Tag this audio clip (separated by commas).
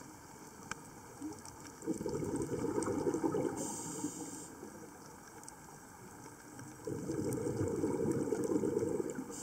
scuba diving